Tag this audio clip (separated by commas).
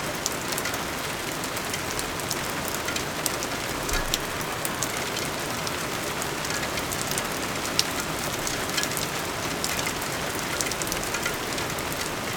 Rain, Water